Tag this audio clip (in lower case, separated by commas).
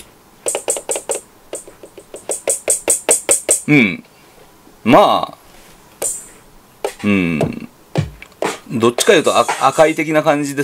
music, musical instrument, speech, sampler